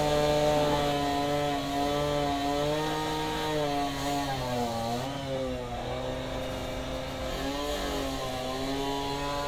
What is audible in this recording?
unidentified powered saw